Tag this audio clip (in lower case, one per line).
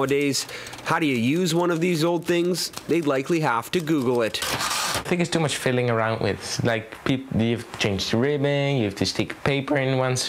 speech
typewriter